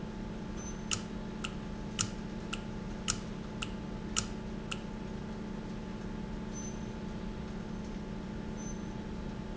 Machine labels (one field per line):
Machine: valve